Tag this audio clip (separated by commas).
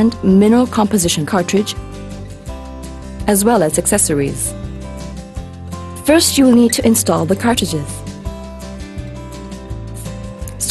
Speech, Music